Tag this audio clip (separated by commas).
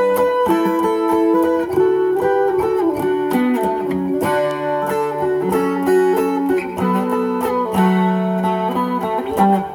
Music, Plucked string instrument, Musical instrument, Guitar